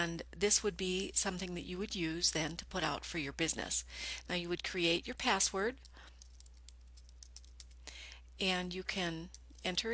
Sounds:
inside a small room
speech

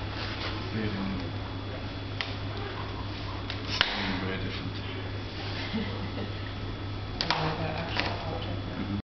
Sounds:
speech

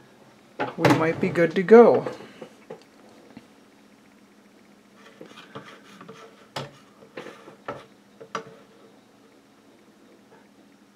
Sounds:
inside a small room
speech

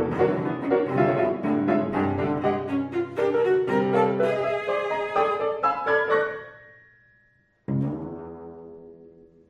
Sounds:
cello
piano
music

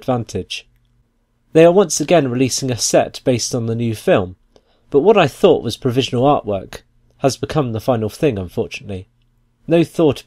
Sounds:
monologue

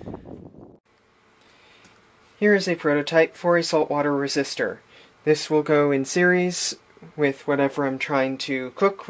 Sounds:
speech

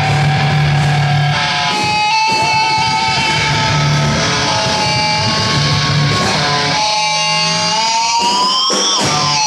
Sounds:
music

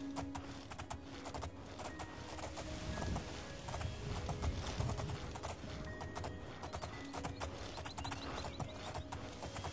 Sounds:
clip-clop
music

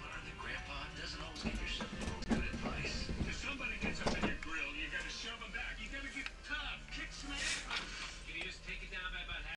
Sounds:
speech

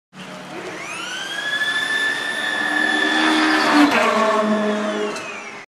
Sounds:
vehicle

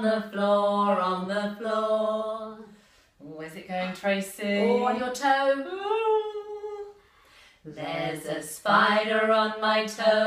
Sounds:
female singing

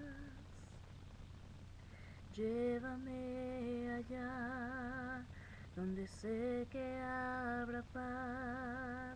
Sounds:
female singing

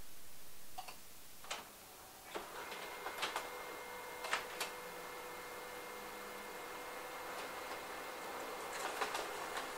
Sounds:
printer

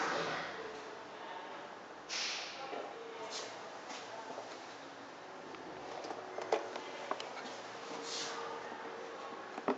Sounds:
speech

